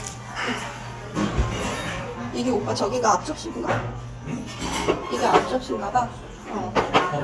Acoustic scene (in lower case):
restaurant